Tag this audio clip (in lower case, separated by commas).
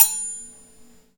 domestic sounds, silverware